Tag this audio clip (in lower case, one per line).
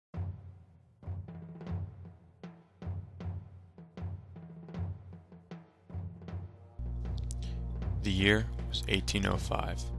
music
speech
timpani